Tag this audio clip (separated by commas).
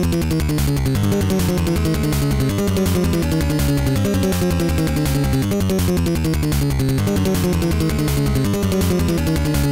Music